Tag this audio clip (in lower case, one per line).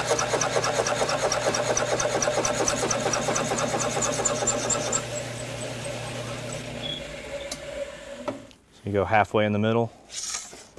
speech
tools